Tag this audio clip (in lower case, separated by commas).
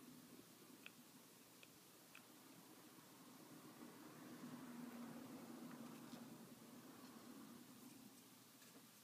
silence